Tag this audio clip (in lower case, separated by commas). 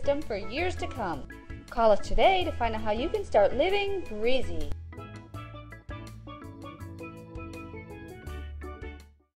music, speech